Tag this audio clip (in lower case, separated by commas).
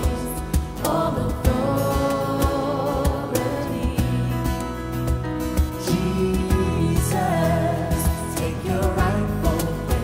music